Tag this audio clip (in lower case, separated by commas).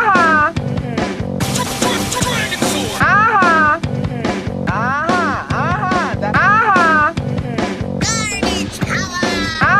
speech, music